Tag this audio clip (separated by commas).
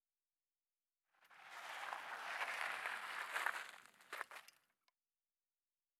Vehicle, Bicycle